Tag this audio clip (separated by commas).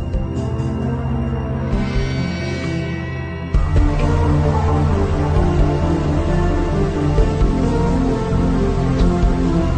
Music